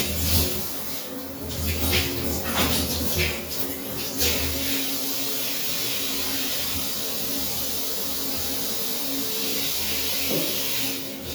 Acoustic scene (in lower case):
restroom